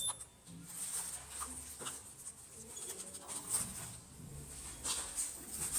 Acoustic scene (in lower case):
elevator